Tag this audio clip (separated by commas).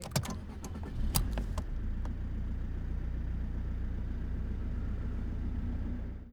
Engine